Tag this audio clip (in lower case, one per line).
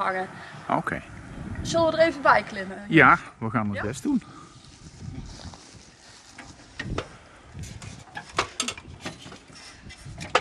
speech